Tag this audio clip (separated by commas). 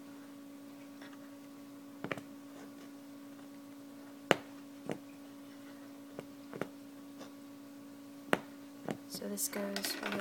inside a small room, Speech